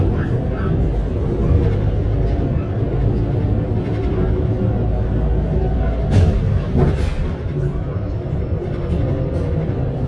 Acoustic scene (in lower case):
bus